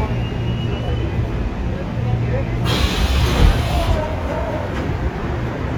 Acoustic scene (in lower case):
subway train